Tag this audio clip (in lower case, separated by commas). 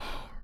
human voice, whispering